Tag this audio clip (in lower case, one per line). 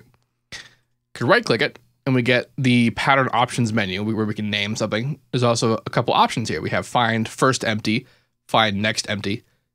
speech